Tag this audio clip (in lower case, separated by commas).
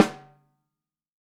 percussion, drum, musical instrument, snare drum, music